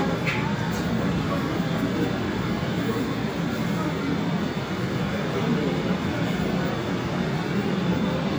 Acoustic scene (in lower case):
subway station